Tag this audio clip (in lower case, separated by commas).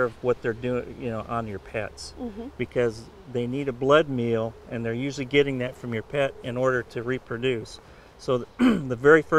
speech